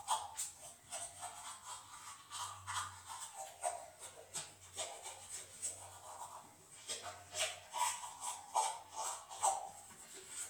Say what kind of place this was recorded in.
restroom